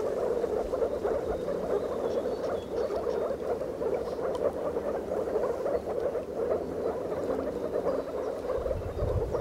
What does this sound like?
Several frogs croak in rapid succession as wing blows